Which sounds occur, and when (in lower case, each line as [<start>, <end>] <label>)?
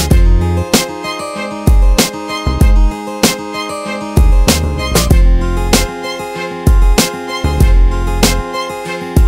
[0.00, 9.25] music